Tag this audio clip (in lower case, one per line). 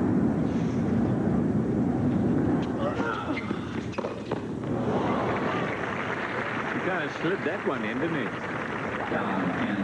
outside, urban or man-made
speech